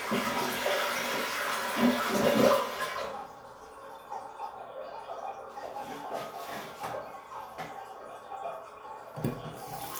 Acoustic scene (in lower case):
restroom